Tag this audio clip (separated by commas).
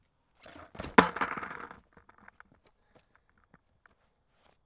Vehicle, Skateboard